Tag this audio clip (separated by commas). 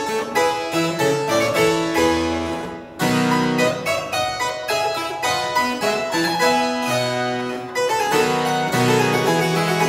playing harpsichord